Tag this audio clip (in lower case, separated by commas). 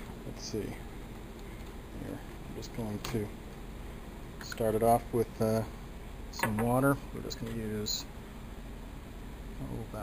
speech